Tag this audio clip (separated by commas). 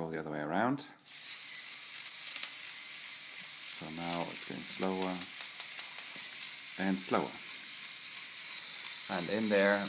Speech